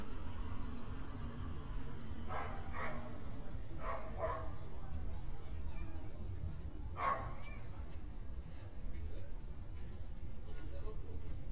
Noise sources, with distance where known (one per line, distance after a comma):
person or small group talking, far
dog barking or whining, far